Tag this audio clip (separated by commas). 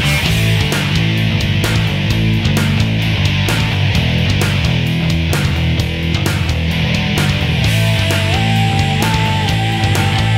Music